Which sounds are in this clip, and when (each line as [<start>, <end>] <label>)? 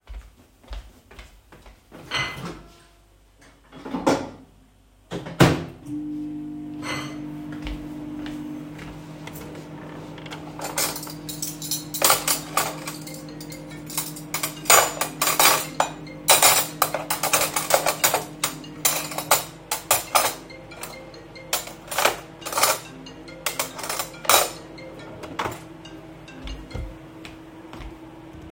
[0.04, 1.91] footsteps
[1.84, 2.78] microwave
[3.73, 28.52] microwave
[7.40, 9.65] footsteps
[9.65, 10.68] wardrobe or drawer
[10.69, 24.66] cutlery and dishes
[12.48, 27.31] phone ringing
[24.98, 25.80] wardrobe or drawer
[26.36, 28.52] footsteps